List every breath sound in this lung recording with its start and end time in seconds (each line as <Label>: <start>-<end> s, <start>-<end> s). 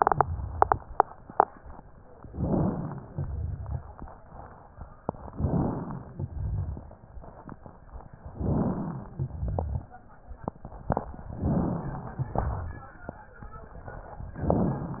Inhalation: 2.28-3.06 s, 5.31-6.09 s, 8.33-9.11 s, 11.33-12.26 s, 14.31-15.00 s
Exhalation: 3.06-3.83 s, 6.17-6.95 s, 9.13-9.91 s, 12.35-12.92 s
Rhonchi: 3.06-3.83 s, 6.17-6.95 s, 9.13-9.91 s, 12.35-12.92 s